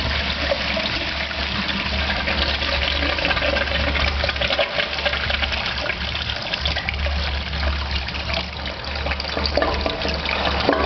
A toilet flushing